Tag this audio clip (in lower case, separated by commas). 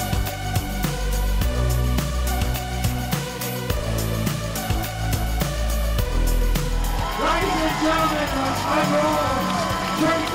speech, music